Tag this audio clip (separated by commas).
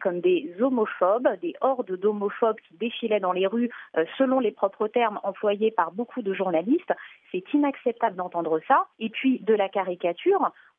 Speech, Radio